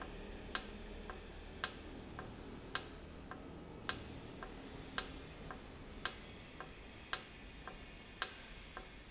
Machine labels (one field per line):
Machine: valve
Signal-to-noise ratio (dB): 6 dB